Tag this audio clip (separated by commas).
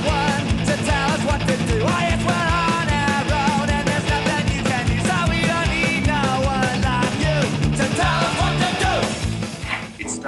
Guitar, Music, Musical instrument, Speech